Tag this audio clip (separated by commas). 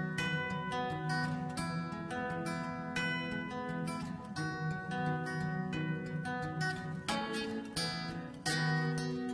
Music, Country